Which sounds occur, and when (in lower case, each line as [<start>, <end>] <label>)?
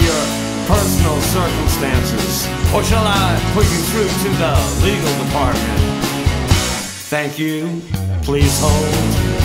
[0.00, 0.41] man speaking
[0.00, 9.44] music
[0.67, 2.46] man speaking
[2.65, 5.81] man speaking
[7.09, 7.89] man speaking
[8.24, 8.88] man speaking